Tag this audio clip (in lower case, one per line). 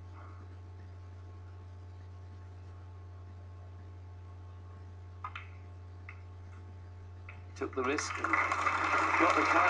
speech